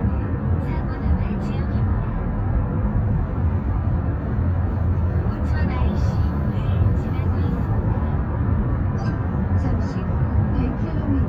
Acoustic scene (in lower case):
car